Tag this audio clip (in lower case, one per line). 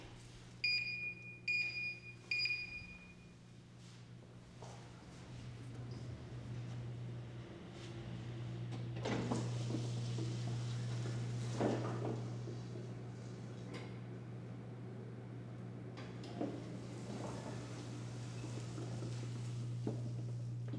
sliding door
door
home sounds